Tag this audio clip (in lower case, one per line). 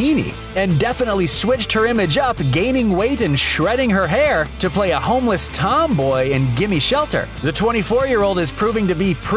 music
speech